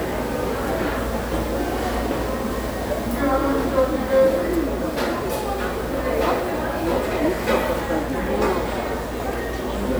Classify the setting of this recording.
restaurant